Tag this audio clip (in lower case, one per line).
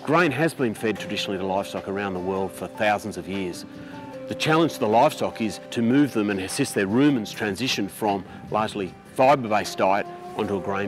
speech
music